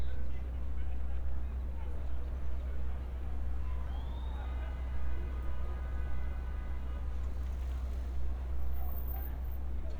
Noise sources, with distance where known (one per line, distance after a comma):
car horn, far
person or small group talking, far